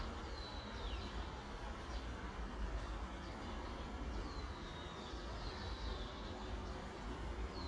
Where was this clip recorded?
in a park